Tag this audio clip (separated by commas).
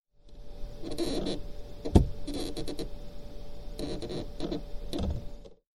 Squeak